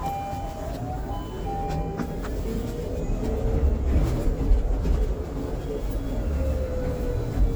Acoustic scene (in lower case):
bus